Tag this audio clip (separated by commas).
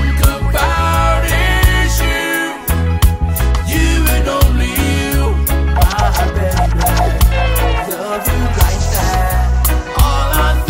Music